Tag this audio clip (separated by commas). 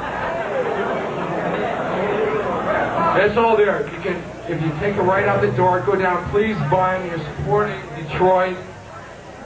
Speech